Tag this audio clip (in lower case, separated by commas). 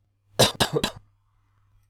cough, respiratory sounds